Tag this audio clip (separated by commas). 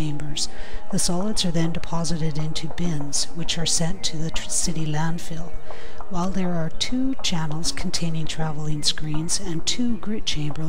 Speech, Music